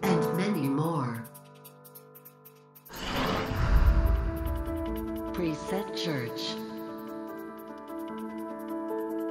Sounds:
Music, Speech

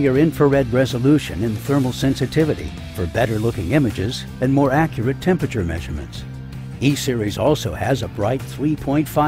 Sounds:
Speech, Music

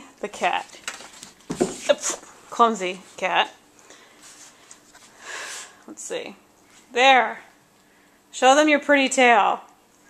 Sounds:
Speech

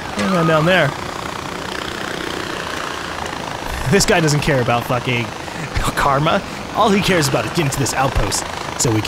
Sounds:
Helicopter

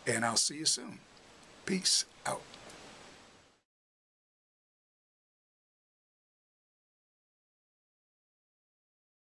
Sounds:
Speech

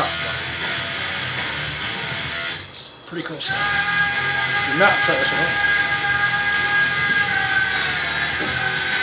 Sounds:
Speech, Music

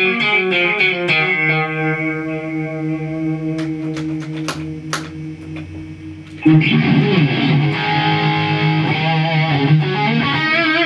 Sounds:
playing bass guitar, Strum, Bass guitar, Guitar, Plucked string instrument, Musical instrument, Music

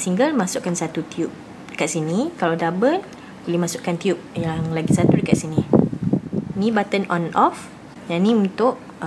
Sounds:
Speech

